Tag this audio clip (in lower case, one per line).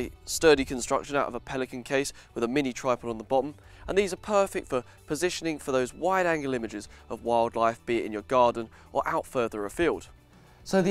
music
speech